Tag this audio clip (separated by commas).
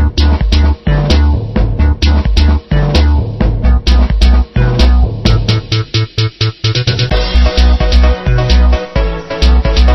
Music, Video game music